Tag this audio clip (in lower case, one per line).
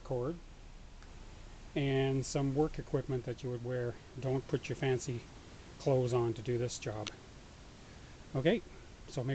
speech